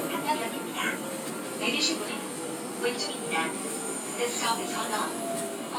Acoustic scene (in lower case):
subway train